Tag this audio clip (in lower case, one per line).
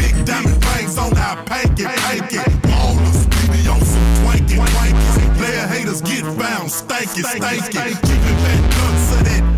dubstep
music